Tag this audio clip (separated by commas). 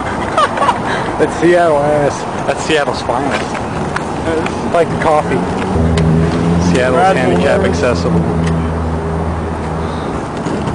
Speech